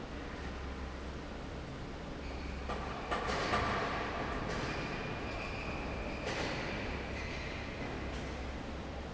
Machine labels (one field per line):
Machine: fan